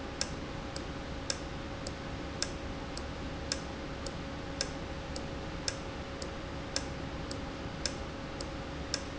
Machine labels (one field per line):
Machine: valve